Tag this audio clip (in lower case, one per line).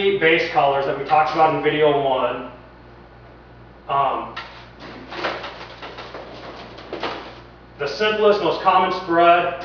speech